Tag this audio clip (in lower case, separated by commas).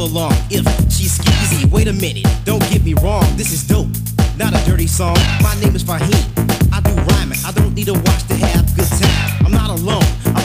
disco, music